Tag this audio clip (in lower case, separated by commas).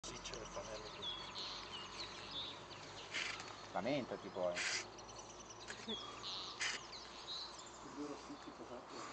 speech, bird call, bird